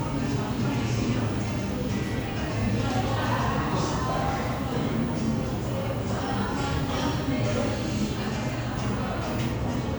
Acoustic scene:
crowded indoor space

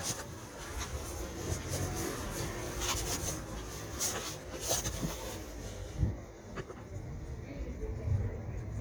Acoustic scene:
residential area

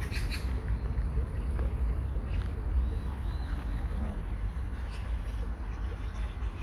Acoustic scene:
park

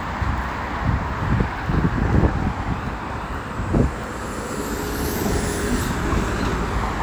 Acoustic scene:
street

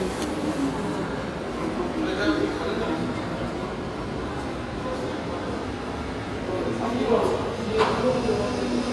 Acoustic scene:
subway station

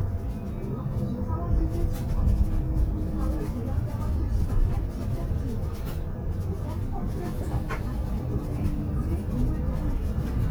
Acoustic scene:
bus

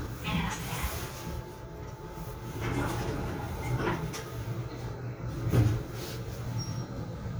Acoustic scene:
elevator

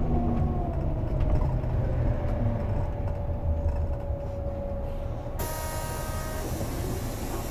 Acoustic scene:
bus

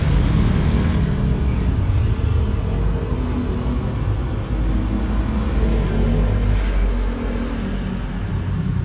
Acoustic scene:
street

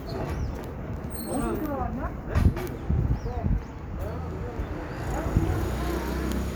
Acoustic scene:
street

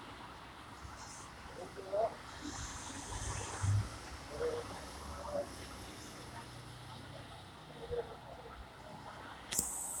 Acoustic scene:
street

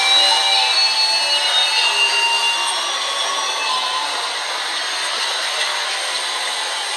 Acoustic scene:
subway station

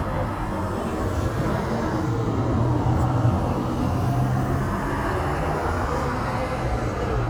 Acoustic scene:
street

